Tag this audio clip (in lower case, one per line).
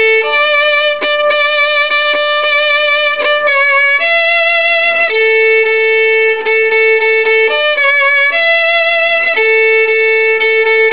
fiddle
bowed string instrument